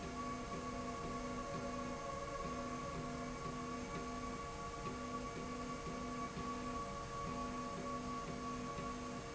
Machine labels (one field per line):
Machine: slide rail